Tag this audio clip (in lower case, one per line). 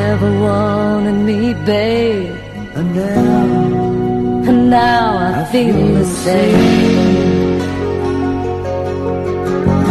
music